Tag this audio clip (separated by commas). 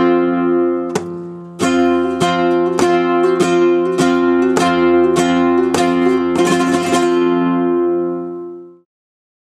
Musical instrument, Guitar, Music, Plucked string instrument